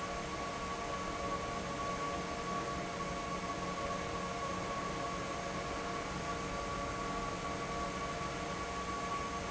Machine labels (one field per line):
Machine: fan